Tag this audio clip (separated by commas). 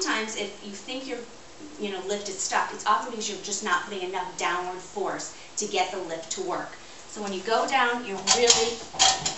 Speech